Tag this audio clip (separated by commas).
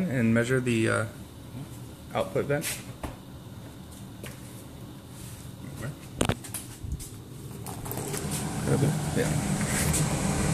inside a small room, Speech